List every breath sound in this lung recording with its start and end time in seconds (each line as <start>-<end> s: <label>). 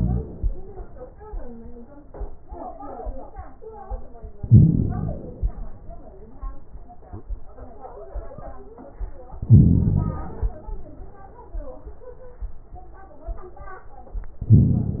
0.00-0.43 s: inhalation
0.00-0.43 s: crackles
0.42-0.97 s: exhalation
0.44-0.99 s: crackles
4.45-5.34 s: inhalation
4.45-5.34 s: crackles
5.38-5.93 s: exhalation
9.41-10.20 s: inhalation
9.41-10.20 s: crackles
10.22-10.78 s: exhalation
10.22-10.78 s: crackles
14.44-15.00 s: inhalation
14.44-15.00 s: crackles